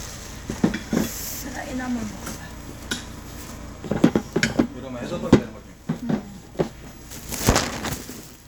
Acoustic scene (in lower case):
restaurant